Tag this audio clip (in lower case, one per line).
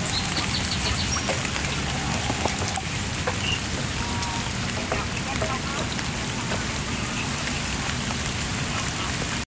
speech